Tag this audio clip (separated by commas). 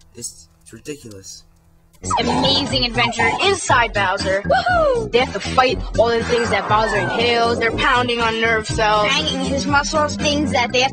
Music, Speech